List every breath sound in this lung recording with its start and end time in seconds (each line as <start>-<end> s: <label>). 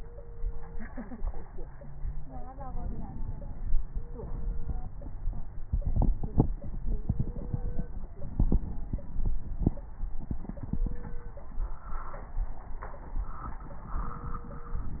1.61-2.73 s: wheeze
2.53-3.75 s: inhalation
3.75-5.17 s: crackles
3.79-5.18 s: exhalation
8.15-9.77 s: inhalation
8.15-9.77 s: crackles